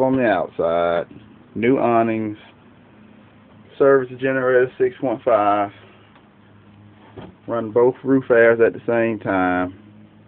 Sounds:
Speech

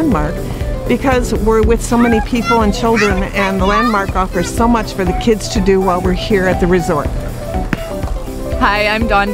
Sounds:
Speech, Music

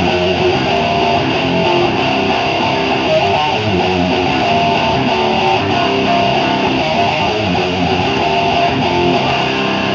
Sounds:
Bass guitar, Plucked string instrument, Musical instrument, Guitar, Music, Strum, Electric guitar

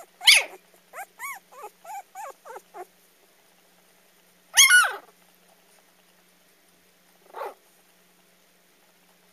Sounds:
Animal, dog barking, Bark

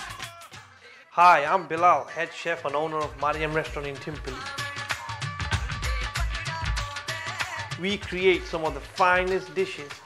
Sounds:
Music, Speech

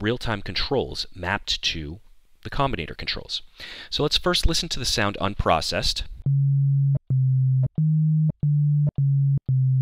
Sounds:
Music, Electronic music, Synthesizer, Speech

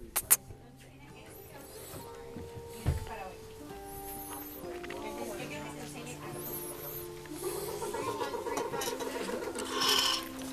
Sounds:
Music

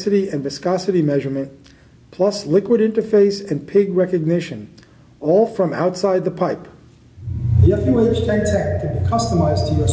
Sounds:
Speech

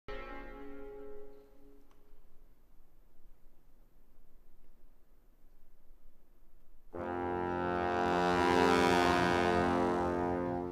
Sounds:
Music, inside a large room or hall

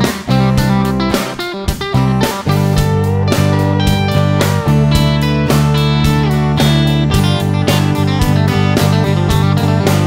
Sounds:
playing electric guitar, Music, Electric guitar, Guitar, Country, Plucked string instrument, Musical instrument

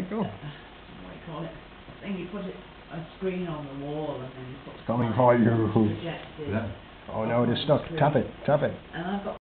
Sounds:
Speech

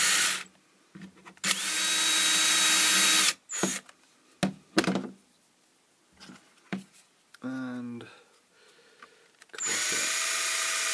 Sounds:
inside a small room, Speech, Drill

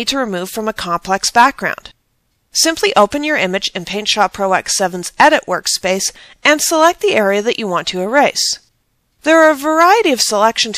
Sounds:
Speech

